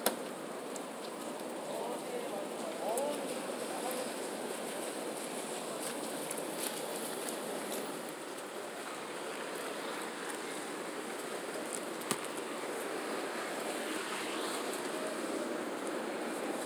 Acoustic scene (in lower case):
residential area